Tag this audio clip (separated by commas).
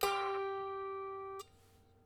Musical instrument, Music, Harp